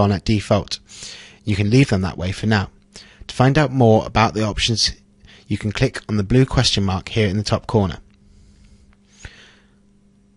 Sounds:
speech

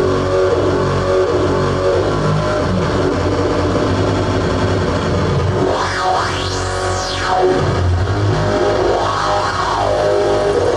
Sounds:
music

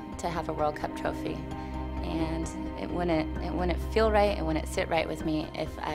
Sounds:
music
speech

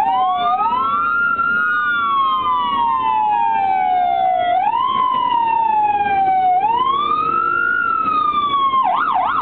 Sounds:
police car (siren)

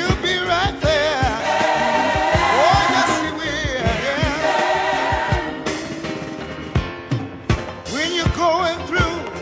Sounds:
choir
radio
music

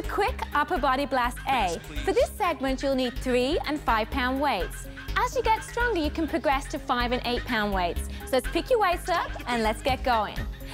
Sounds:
music
speech

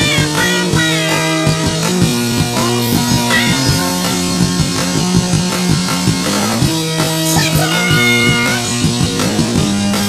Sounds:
music

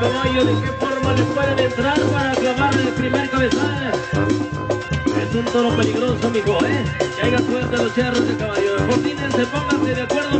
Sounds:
brass instrument
trumpet

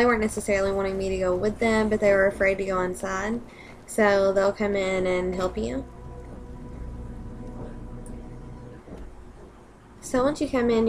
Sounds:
speech

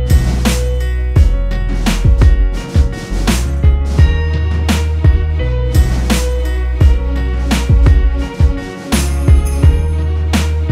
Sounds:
music

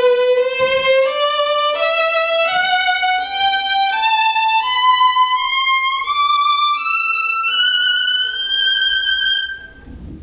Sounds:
violin
music
musical instrument

